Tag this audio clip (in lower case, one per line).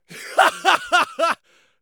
laughter
human voice